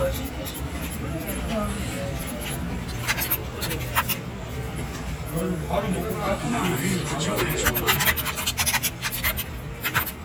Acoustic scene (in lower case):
crowded indoor space